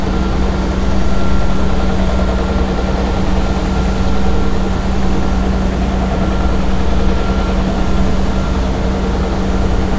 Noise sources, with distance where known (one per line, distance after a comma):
unidentified impact machinery